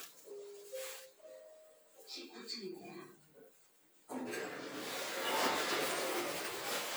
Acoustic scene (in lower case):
elevator